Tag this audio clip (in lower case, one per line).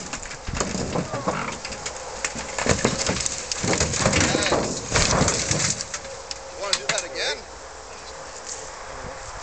car
speech
motor vehicle (road)
vehicle